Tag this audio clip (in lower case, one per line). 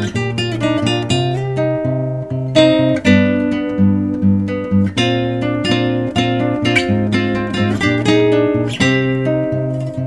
strum
music
acoustic guitar
plucked string instrument
guitar
musical instrument